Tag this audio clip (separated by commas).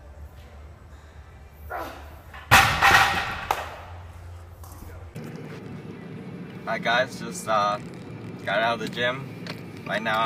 Car, Speech